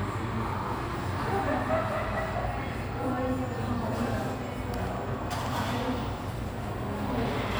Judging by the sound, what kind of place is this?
cafe